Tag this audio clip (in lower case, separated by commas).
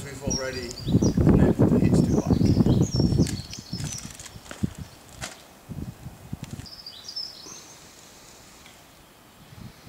speech, environmental noise